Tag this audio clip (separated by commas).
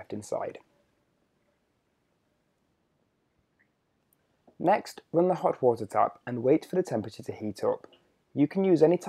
Speech